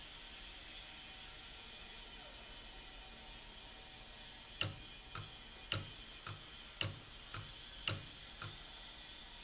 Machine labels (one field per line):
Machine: valve